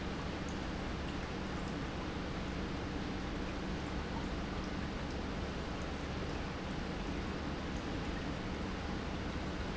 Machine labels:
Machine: pump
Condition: normal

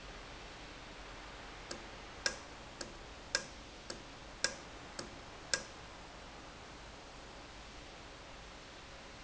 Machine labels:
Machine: valve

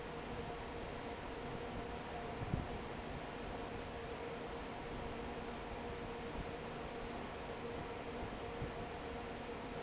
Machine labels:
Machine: fan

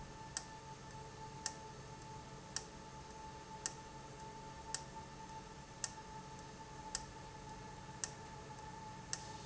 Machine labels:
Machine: valve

